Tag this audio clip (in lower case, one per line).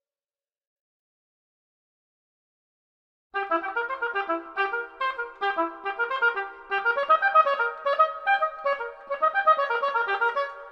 wind instrument
clarinet